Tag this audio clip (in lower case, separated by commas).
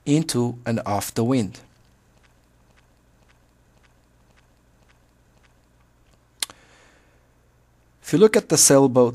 speech